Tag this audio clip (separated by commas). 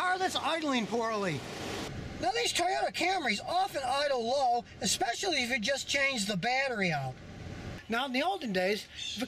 Speech